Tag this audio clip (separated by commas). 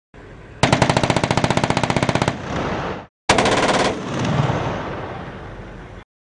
Explosion, Gunshot